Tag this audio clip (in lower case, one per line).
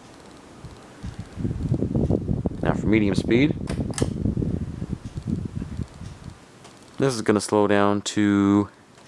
speech